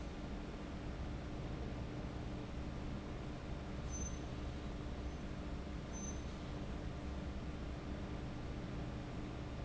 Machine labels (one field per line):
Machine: fan